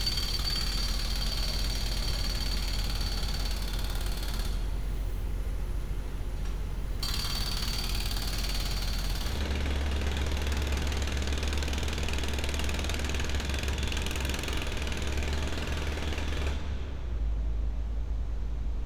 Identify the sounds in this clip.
jackhammer